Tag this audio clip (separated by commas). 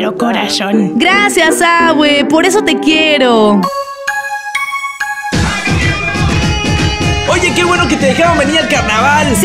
Music, Speech